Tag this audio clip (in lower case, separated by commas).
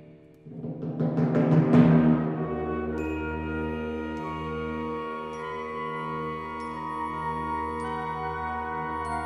music, timpani